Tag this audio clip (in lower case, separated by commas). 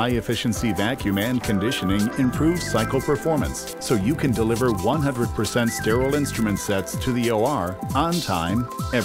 music, speech